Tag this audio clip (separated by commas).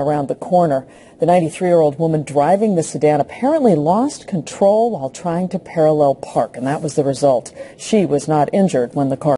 Speech